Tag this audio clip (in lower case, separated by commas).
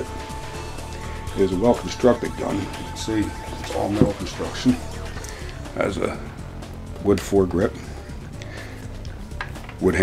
speech, music